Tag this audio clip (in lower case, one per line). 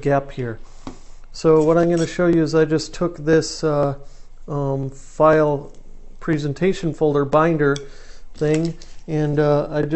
speech